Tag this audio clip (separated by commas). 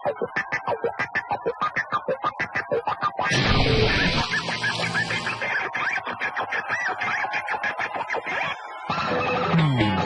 Guitar, Music